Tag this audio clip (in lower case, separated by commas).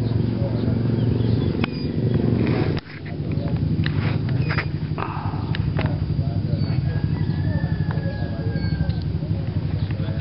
outside, rural or natural, speech